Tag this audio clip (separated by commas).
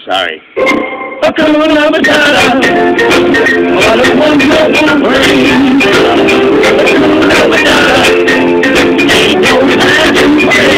Singing, Music, Steelpan